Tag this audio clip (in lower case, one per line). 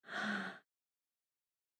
respiratory sounds
breathing